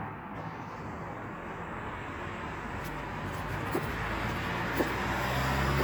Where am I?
on a street